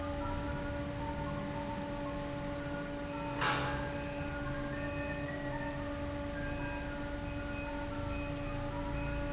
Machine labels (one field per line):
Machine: fan